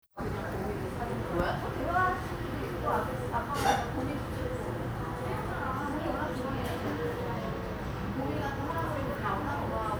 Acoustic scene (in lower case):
crowded indoor space